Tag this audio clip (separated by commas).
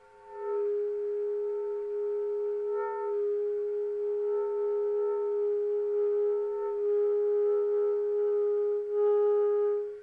Music, Musical instrument, Wind instrument